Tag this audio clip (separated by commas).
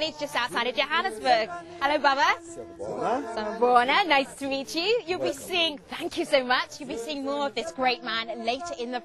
Speech